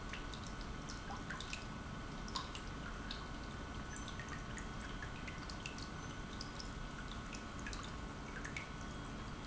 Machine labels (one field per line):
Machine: pump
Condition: normal